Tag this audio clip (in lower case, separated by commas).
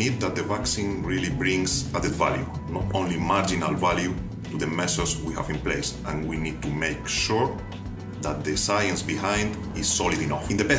music, speech